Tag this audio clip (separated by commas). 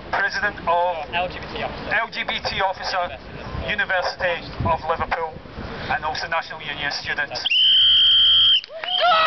man speaking, Speech